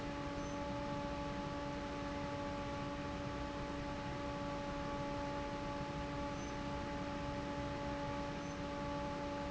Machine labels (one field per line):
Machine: fan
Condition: normal